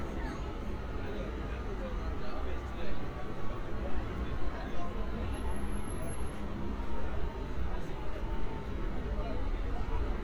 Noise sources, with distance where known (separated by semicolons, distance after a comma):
unidentified alert signal, far; person or small group talking, near